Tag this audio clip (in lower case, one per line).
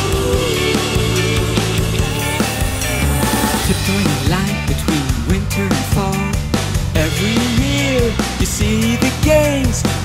music
pop music